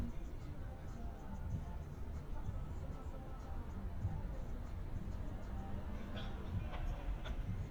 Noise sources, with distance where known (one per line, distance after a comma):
music from a moving source